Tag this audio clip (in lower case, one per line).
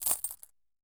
domestic sounds
coin (dropping)